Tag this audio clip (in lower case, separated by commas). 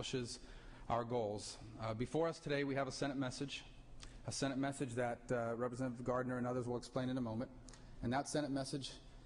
monologue, speech, man speaking